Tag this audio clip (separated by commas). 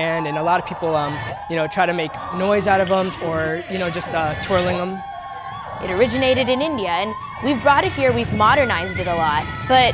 Speech